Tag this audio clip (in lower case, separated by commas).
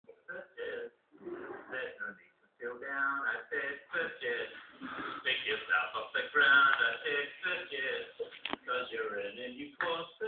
speech